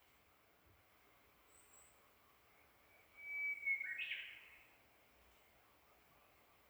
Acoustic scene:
park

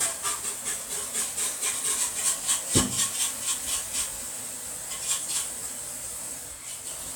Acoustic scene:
kitchen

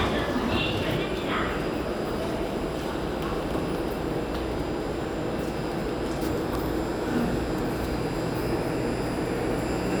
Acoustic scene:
subway station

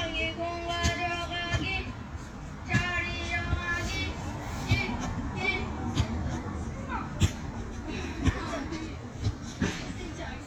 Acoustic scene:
residential area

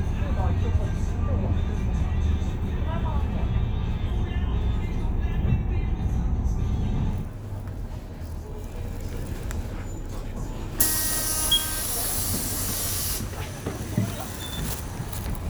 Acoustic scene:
bus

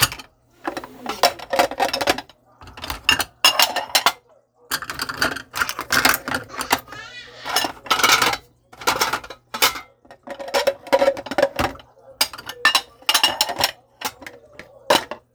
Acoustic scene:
kitchen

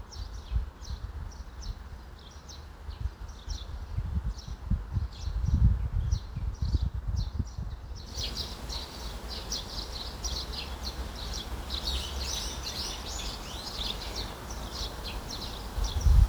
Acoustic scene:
park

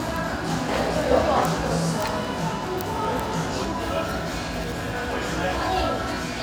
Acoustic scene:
cafe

